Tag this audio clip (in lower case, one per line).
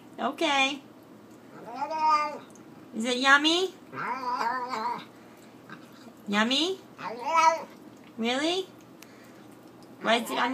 speech